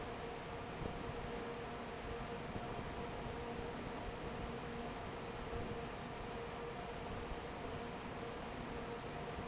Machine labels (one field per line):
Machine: fan